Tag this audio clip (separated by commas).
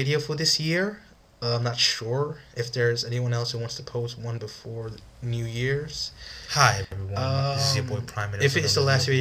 Speech